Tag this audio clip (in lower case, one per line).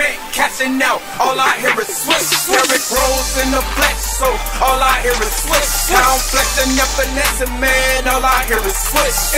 music